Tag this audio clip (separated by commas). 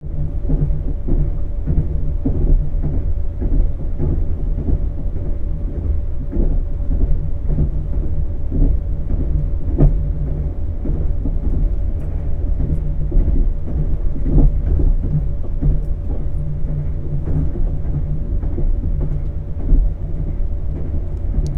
Rail transport, Train, Vehicle